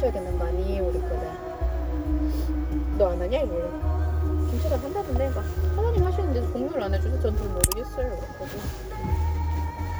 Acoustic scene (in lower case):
car